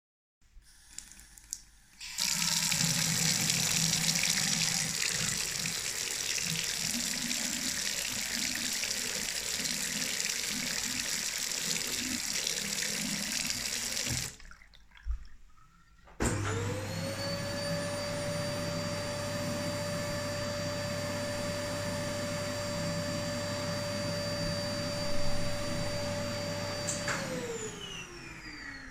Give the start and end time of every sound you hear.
0.3s-14.6s: running water
15.7s-28.8s: vacuum cleaner

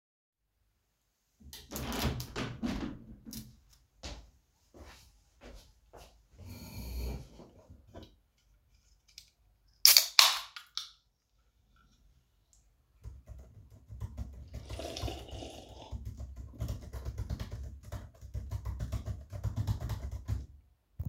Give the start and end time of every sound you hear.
1.4s-3.6s: window
4.0s-6.3s: footsteps
13.0s-20.5s: keyboard typing

